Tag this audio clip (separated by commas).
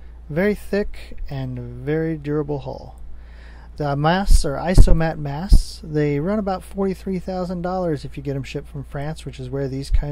Speech